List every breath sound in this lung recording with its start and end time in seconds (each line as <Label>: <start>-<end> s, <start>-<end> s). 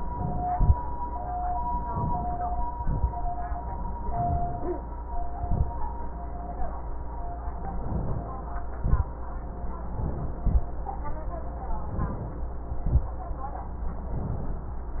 Inhalation: 1.92-2.66 s, 3.99-4.86 s, 7.78-8.46 s, 9.94-10.44 s, 11.88-12.45 s, 14.15-14.84 s
Exhalation: 0.47-0.76 s, 2.75-3.08 s, 5.43-5.71 s, 8.82-9.11 s, 10.44-10.70 s, 12.87-13.15 s